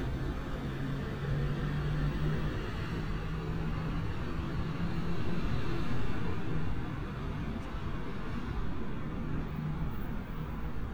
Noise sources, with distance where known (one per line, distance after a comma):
large-sounding engine, far